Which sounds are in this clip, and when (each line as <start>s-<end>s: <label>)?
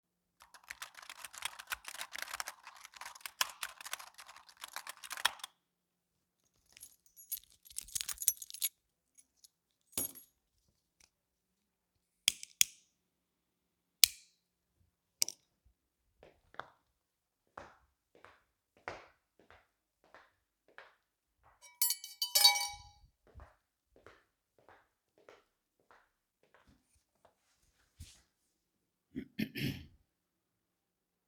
0.4s-5.7s: keyboard typing
6.7s-8.8s: keys
9.3s-9.5s: keys
9.9s-10.3s: keys
21.7s-23.1s: cutlery and dishes